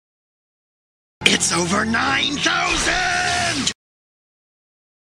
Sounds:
Speech

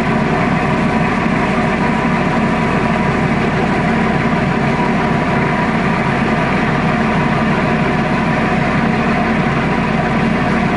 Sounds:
Ship, Water vehicle

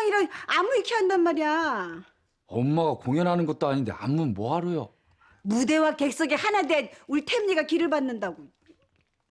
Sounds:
Speech

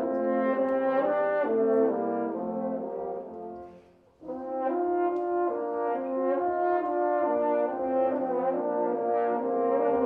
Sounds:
Music, playing french horn, French horn

